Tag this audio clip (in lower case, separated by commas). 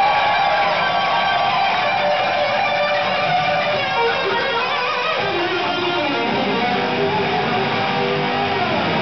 music, plucked string instrument, strum, musical instrument, bass guitar